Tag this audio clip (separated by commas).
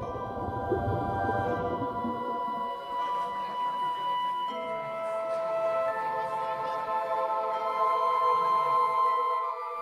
Music